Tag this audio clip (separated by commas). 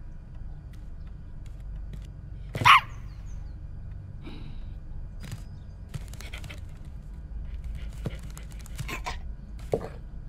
Bow-wow